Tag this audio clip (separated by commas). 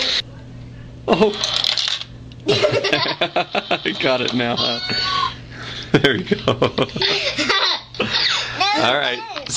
Speech